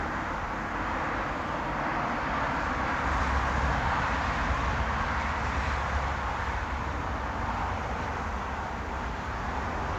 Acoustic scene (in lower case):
street